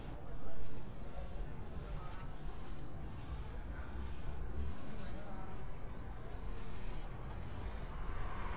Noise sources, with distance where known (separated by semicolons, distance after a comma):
person or small group talking, far